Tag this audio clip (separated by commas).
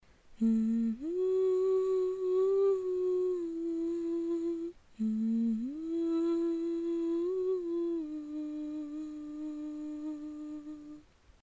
Human voice, Singing